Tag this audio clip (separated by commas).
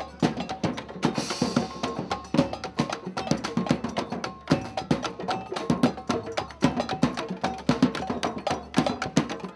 Music, Folk music